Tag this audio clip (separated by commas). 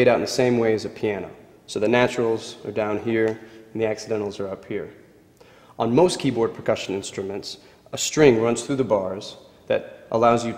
Speech